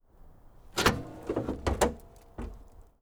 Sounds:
Car, Vehicle, Motor vehicle (road)

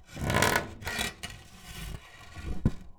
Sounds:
Tools

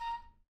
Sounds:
Musical instrument, Music, woodwind instrument

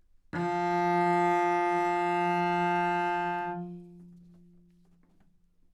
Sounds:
Music, Bowed string instrument, Musical instrument

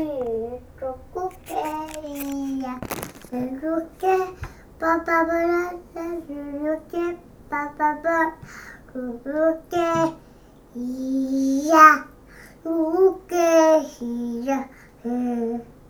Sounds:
Singing, Human voice

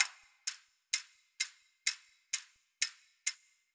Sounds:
Mechanisms, Clock

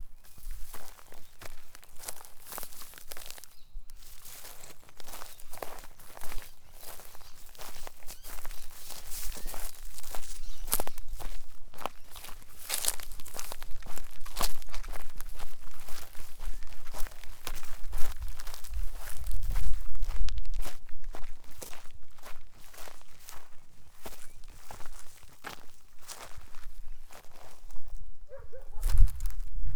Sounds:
Wild animals, bird call, Chirp, Animal, Bird

